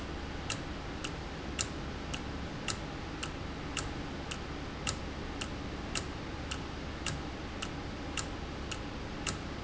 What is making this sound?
valve